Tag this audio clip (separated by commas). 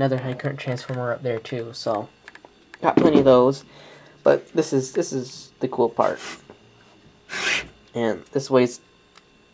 Speech